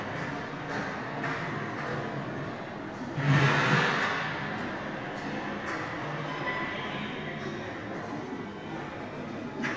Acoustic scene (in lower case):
subway station